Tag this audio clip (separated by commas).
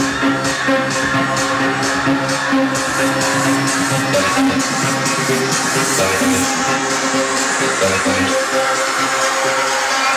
Music, Independent music